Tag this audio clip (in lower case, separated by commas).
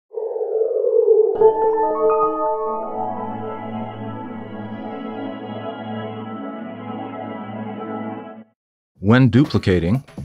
ambient music, speech, music